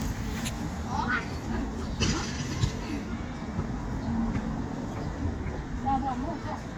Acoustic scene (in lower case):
residential area